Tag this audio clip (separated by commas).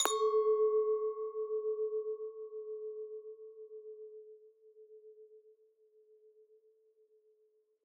Glass, clink